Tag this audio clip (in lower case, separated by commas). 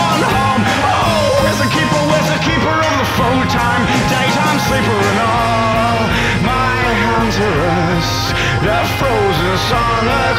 music